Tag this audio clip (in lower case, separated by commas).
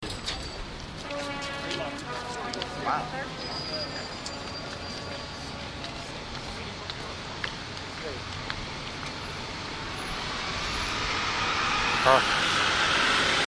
vehicle, motor vehicle (road), bus